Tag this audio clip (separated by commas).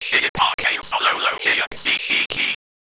Whispering, Human voice